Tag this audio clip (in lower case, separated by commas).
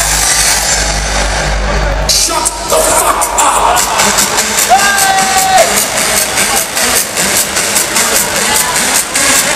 crowd